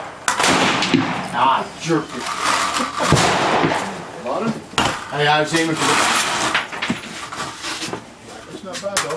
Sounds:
Speech

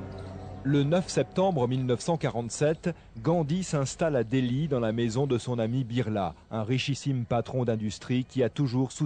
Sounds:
Speech

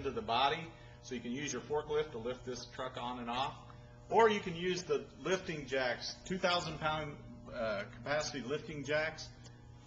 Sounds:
Speech

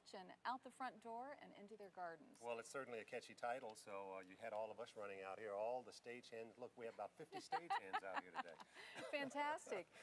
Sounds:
Speech

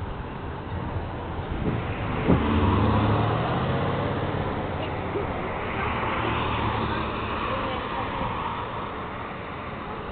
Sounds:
Speech, outside, urban or man-made

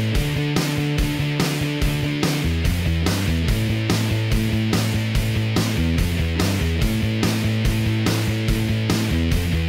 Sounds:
Music

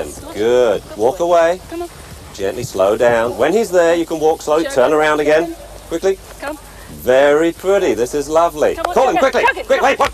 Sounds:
Dog, Speech, Animal, Domestic animals

